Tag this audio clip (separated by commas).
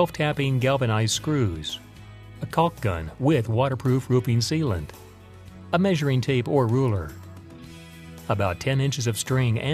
Speech, Music